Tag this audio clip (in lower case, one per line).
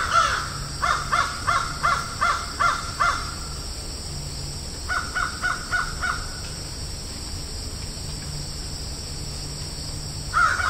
crow cawing